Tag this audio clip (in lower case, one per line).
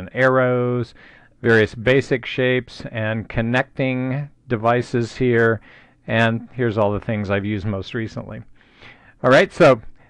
speech